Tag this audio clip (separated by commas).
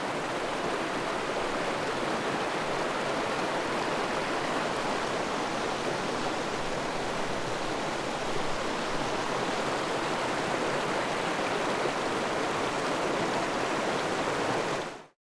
Water, Stream